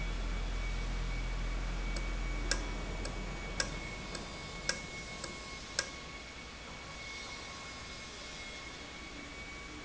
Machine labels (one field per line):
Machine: valve